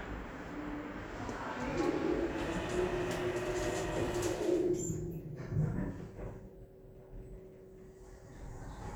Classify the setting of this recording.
elevator